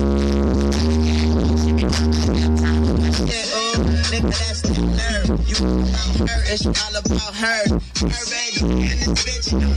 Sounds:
Music

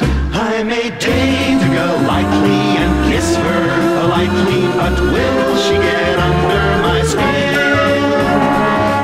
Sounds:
Music

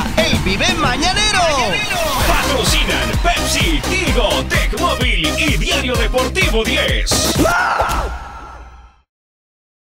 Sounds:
Music, Disco, Speech, Funk, Jazz

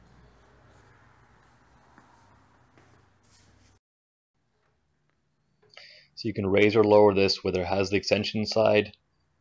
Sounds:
Speech

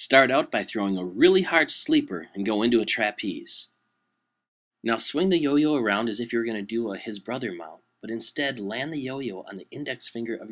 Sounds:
Speech

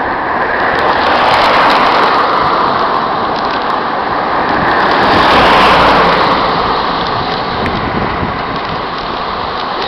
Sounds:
Bicycle, Vehicle

